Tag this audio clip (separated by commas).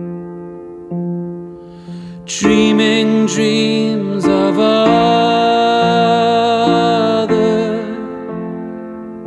Music